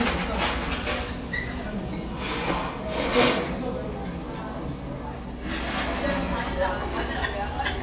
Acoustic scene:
restaurant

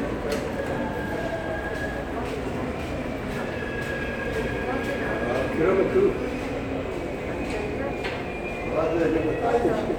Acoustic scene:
subway station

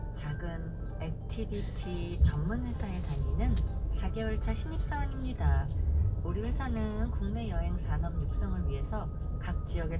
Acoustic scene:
car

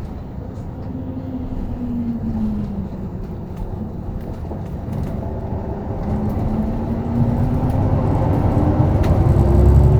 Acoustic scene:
bus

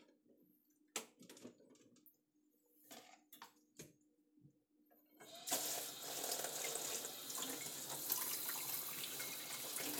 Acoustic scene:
kitchen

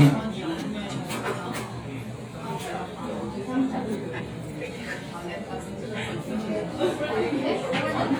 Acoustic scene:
restaurant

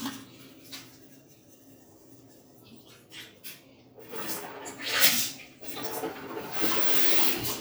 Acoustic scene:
restroom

